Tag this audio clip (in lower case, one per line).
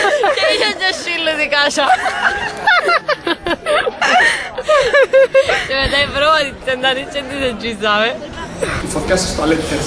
speech
outside, urban or man-made
hubbub